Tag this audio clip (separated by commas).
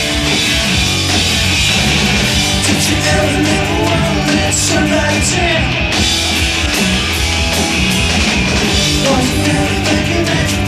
Singing, Rock and roll, Music